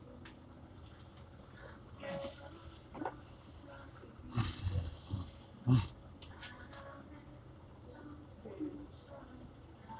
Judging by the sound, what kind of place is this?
bus